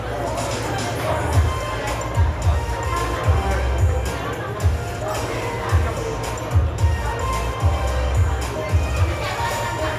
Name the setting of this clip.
cafe